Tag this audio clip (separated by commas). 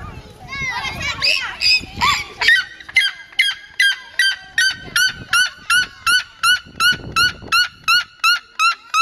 bird squawking